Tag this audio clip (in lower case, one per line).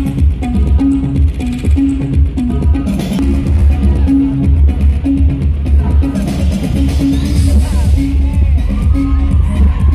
music
speech
cheering